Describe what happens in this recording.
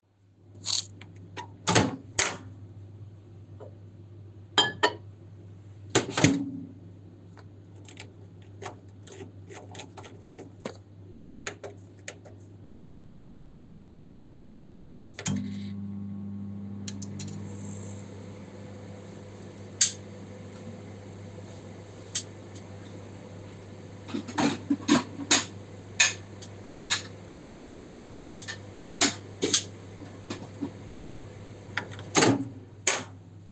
using microwave. putting in something taking it out. running it. there is alos some cutlerynoise